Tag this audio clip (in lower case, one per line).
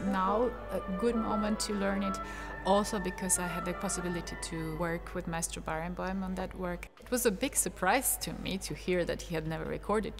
music
fiddle
musical instrument
speech